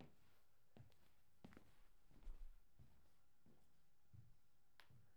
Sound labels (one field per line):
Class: footsteps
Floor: tiled floor